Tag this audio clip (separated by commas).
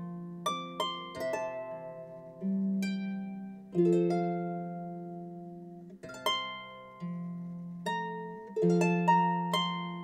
Harp, Pizzicato